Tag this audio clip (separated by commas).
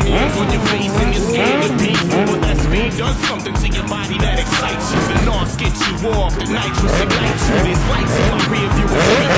Music